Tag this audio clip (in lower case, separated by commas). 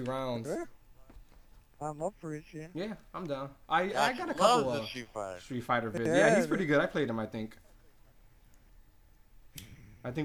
speech